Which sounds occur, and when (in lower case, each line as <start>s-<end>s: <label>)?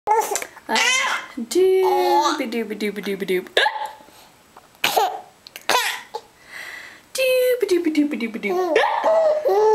0.0s-0.3s: human voice
0.0s-9.7s: background noise
0.2s-0.4s: generic impact sounds
0.6s-0.8s: human voice
0.7s-1.2s: babbling
1.4s-3.4s: female speech
1.8s-2.3s: babbling
3.5s-3.9s: human voice
3.8s-3.9s: tick
4.0s-4.3s: surface contact
4.5s-4.6s: generic impact sounds
4.8s-5.2s: baby laughter
5.4s-5.6s: tick
5.6s-6.1s: baby laughter
6.4s-7.0s: breathing
7.1s-8.6s: female speech
8.4s-9.7s: baby laughter
8.7s-9.0s: human voice